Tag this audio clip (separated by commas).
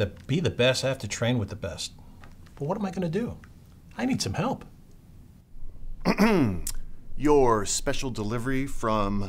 Speech